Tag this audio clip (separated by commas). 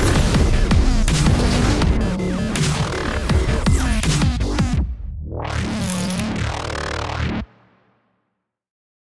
Music